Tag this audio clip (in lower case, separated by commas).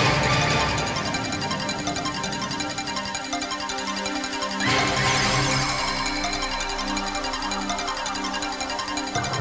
music